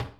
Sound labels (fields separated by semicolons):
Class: cupboard; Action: closing; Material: wooden